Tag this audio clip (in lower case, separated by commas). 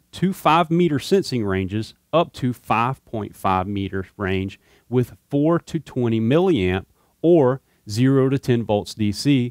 speech